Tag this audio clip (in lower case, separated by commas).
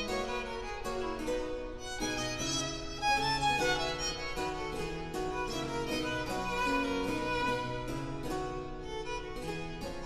music, musical instrument, fiddle